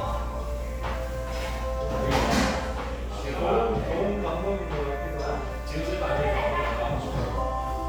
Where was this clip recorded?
in a restaurant